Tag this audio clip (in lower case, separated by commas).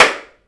hands, clapping